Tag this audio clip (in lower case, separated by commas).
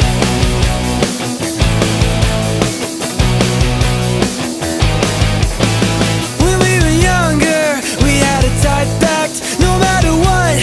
grunge